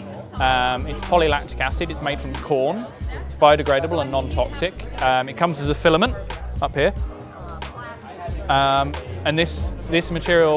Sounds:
Music, Speech

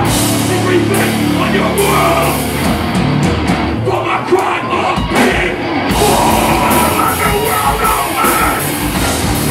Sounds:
Music, Singing

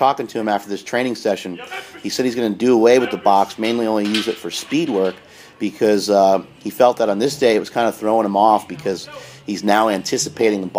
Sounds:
Speech

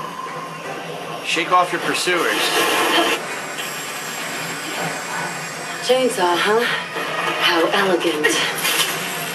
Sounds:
Television

